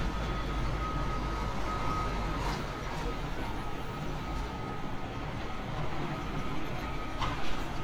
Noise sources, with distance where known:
reverse beeper

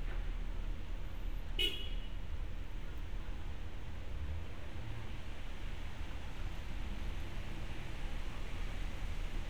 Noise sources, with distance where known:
car horn, near

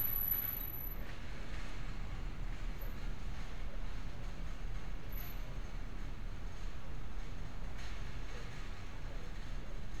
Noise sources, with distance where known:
background noise

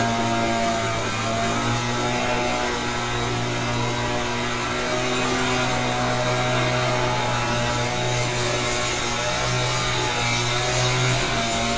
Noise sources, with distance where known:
unidentified powered saw, near

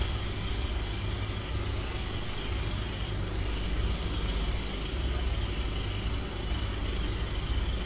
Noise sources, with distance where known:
unidentified impact machinery, near

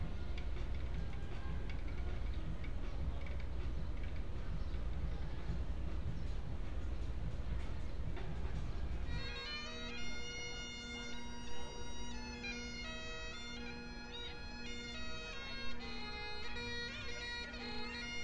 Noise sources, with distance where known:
music from an unclear source

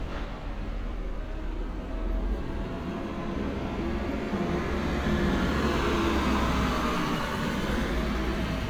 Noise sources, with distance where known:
large-sounding engine, near

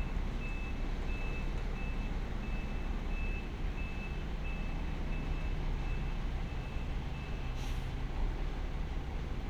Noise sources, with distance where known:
reverse beeper, far

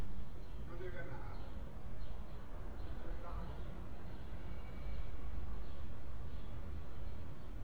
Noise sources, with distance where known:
background noise

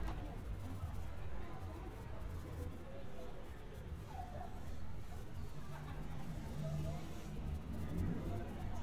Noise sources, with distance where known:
person or small group talking

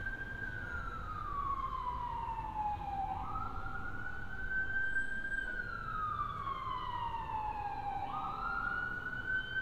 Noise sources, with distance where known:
siren, far

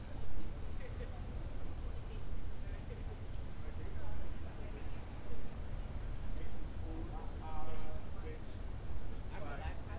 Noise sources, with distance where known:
person or small group talking, near

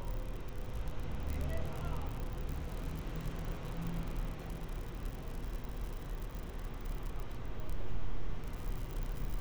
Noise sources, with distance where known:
large-sounding engine
person or small group shouting

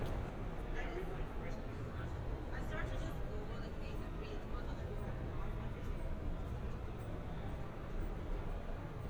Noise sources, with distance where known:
person or small group talking, far

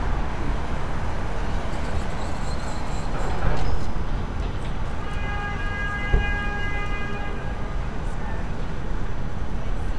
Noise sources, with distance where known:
car horn

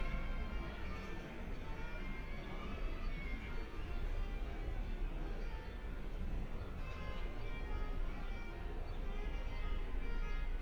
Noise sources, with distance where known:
music from an unclear source

